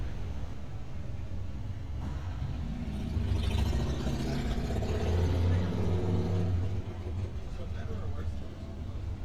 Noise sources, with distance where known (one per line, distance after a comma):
medium-sounding engine, near
person or small group talking, near